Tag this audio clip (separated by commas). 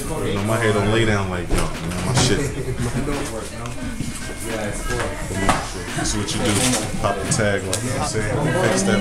Music, Speech